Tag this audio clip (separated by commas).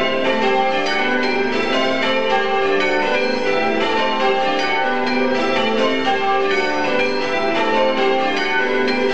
church bell ringing